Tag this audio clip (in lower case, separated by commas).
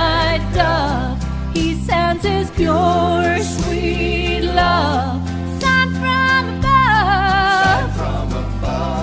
singing, music